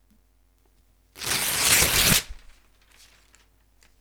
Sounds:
tearing

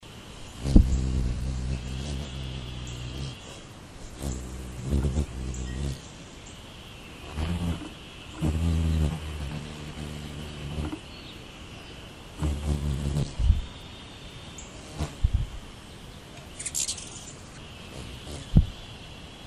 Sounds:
wild animals
bird
animal
bird call

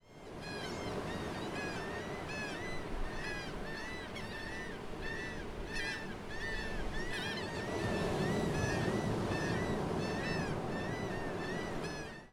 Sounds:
water
ocean

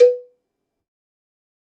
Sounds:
cowbell
bell

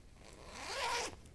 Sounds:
home sounds
zipper (clothing)

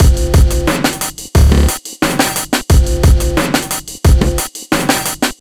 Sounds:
drum kit
percussion
musical instrument
music

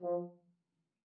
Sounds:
brass instrument
musical instrument
music

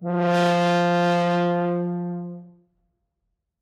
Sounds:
music
musical instrument
brass instrument

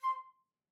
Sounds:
woodwind instrument
music
musical instrument

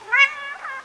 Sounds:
animal
cat
pets

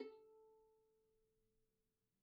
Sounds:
music
bowed string instrument
musical instrument

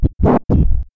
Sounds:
music
musical instrument
scratching (performance technique)

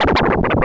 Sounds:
scratching (performance technique)
musical instrument
music

